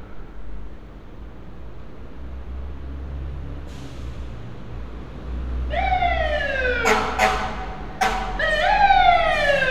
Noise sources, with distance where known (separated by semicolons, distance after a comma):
siren, near